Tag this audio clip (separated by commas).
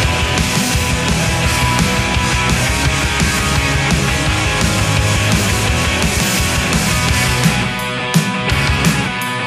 Music